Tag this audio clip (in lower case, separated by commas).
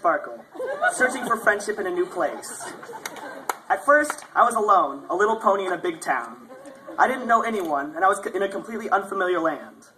speech, narration, male speech